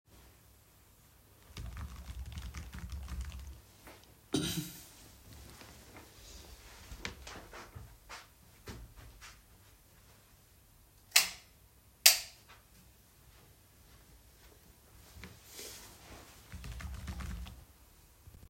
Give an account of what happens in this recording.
I was typing on my keyboard, then I coughed. I got up and walked across the room, turned the light off and on, then came back and continued typing.